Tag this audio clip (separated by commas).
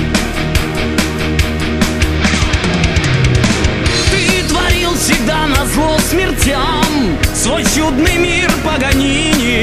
Musical instrument, Music